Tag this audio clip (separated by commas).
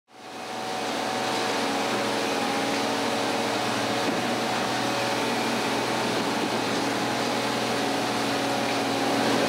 Rail transport, Train, train wagon, Vehicle